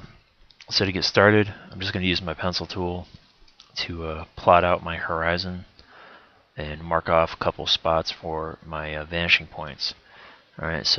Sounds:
Speech

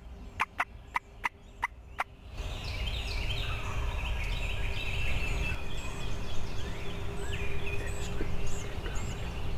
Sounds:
Bird, Animal

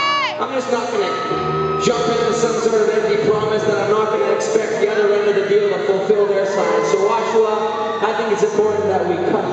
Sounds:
man speaking, monologue, Speech, Music

